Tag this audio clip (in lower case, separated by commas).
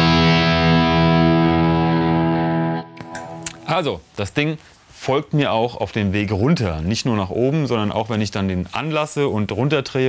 plucked string instrument, musical instrument, music, distortion, electric guitar, guitar, speech, effects unit